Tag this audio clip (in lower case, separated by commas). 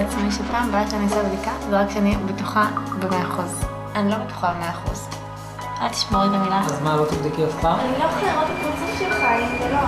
music, speech